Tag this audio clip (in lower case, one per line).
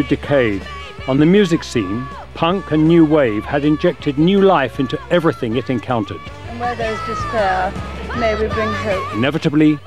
music
speech